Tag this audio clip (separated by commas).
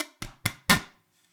Zipper (clothing), home sounds